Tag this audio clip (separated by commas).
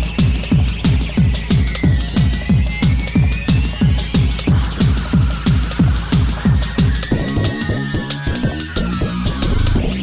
Techno, Electronic music, Music